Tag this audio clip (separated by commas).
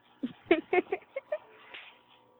Human voice